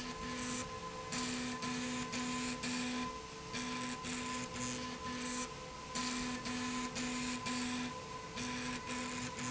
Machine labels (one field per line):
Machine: slide rail